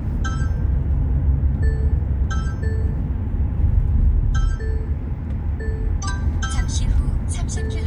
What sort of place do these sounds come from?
car